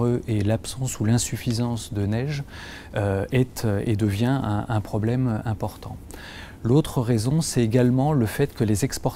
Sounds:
speech

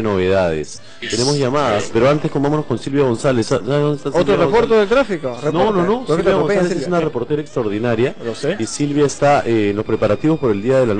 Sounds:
music
speech

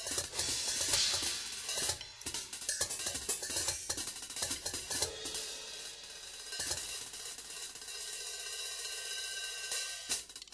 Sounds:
cymbal
percussion
drum kit
music
hi-hat
musical instrument

